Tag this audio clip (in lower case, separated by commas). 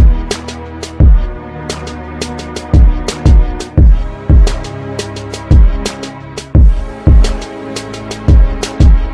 music